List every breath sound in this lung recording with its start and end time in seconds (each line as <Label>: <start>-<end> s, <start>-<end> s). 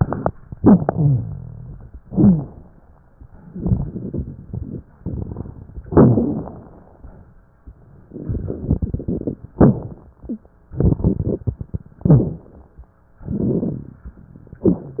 Inhalation: 2.05-2.66 s, 5.86-6.78 s, 9.56-10.13 s, 12.03-12.64 s
Exhalation: 0.49-1.99 s, 3.53-4.90 s, 8.06-9.51 s, 10.74-11.90 s, 13.24-14.00 s
Rhonchi: 0.49-1.99 s, 2.05-2.66 s, 5.86-6.78 s, 9.56-10.13 s
Crackles: 3.49-5.79 s, 8.06-9.51 s, 10.74-11.90 s, 13.24-14.00 s